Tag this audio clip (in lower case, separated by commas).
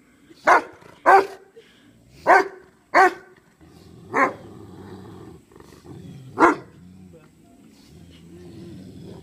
pets, animal, dog, bow-wow, speech, yip